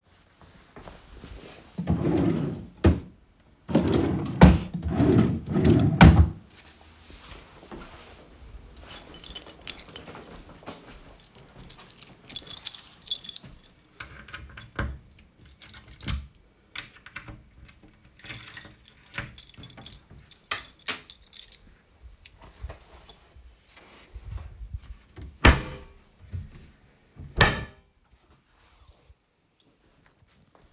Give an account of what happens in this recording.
I walked to the wardrobe and opened it browsing through the clothes inside. I closed it and moved to another wardrobe. I took my keys and used them to open a two-door wardrobe. I closed one door and then the other.